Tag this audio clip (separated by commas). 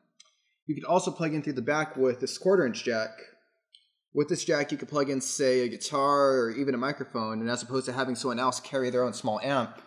Speech